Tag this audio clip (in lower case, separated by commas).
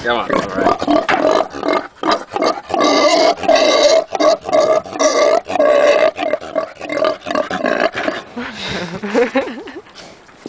pig oinking